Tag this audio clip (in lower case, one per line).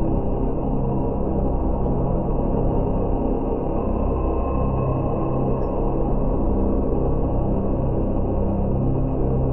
music
ambient music